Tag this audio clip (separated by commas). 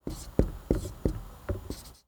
Writing, home sounds